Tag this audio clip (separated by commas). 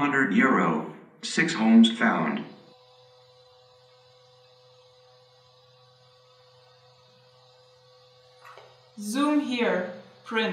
Speech, inside a small room